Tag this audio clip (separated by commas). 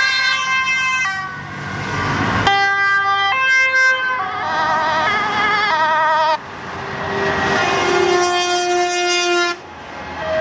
truck horn, Vehicle